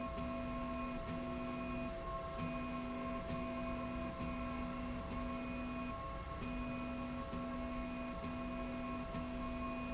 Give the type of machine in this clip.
slide rail